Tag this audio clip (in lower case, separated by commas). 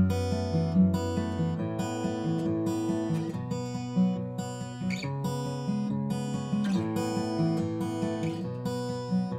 acoustic guitar, musical instrument, guitar, playing acoustic guitar, music